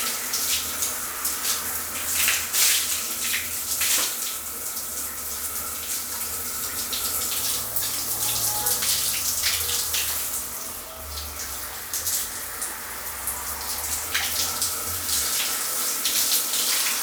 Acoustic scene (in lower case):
restroom